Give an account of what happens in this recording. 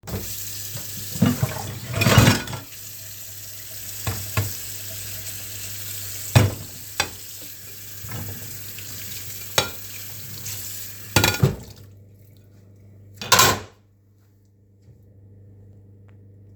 You wash your plates after eating.